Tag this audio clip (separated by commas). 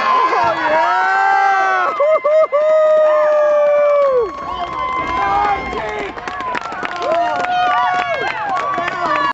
Run, Speech